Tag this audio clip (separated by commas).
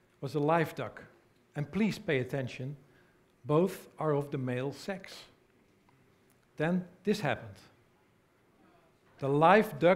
Speech